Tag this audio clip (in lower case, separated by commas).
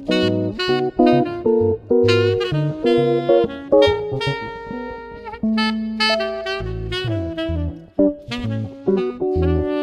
music, musical instrument, jazz, plucked string instrument, guitar